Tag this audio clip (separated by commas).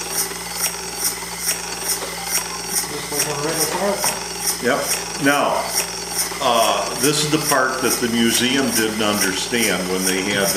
Speech, Engine